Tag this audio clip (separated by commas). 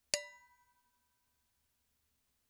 dishes, pots and pans, home sounds